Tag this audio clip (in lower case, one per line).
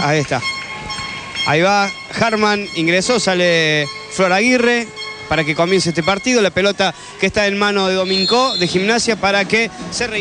speech